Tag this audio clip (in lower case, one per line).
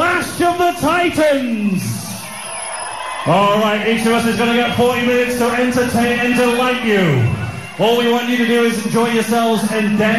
speech